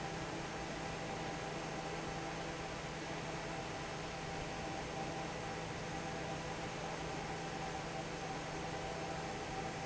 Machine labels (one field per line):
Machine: fan